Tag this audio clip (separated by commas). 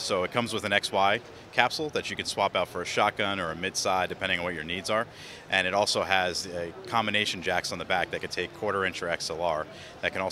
Speech